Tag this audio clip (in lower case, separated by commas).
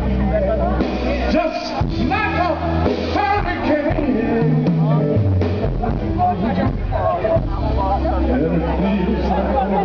music, speech